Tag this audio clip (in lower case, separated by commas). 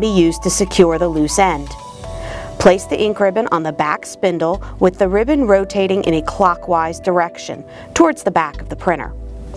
speech, music